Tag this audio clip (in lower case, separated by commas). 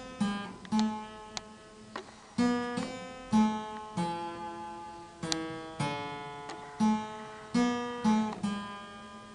playing harpsichord